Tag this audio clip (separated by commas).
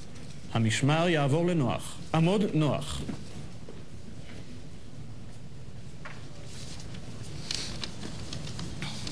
Speech, Male speech